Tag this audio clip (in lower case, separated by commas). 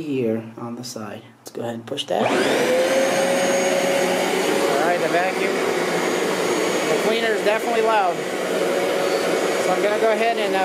vacuum cleaner cleaning floors